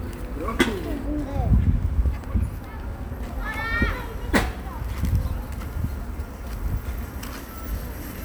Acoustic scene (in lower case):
park